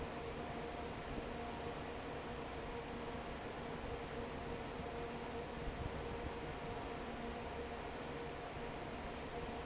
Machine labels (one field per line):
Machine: fan